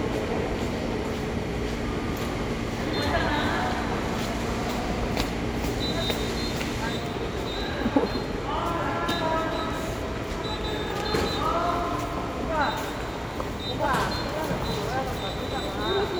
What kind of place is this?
subway station